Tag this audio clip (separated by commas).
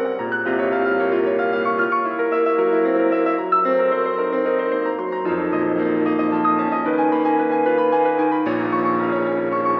Music